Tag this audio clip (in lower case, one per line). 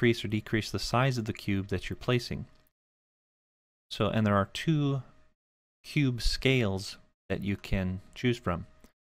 speech